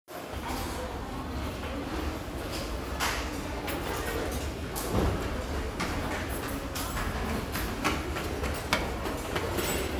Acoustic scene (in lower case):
restaurant